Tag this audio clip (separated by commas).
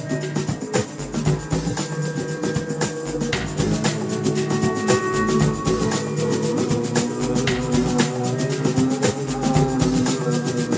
Music